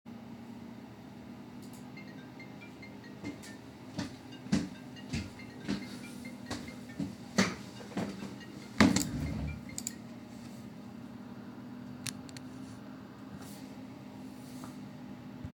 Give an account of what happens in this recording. I open my wardrobe to get some clothes, and then open the window to get some fresh air.